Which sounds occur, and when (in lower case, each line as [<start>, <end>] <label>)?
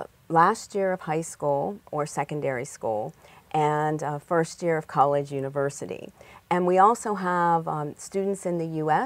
[0.00, 9.05] background noise
[0.27, 3.08] woman speaking
[3.12, 3.51] breathing
[3.52, 6.07] woman speaking
[6.15, 6.46] breathing
[6.48, 9.05] woman speaking